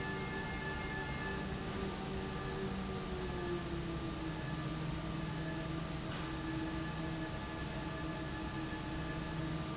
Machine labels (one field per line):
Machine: fan